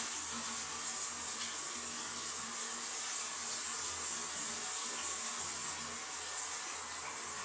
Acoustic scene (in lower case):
restroom